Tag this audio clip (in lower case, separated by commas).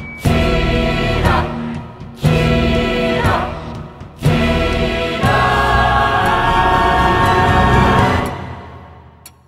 music, choir, theme music